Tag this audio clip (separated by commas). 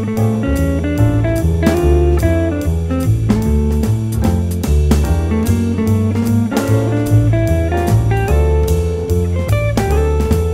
Music